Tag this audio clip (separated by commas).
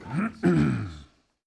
Cough, Respiratory sounds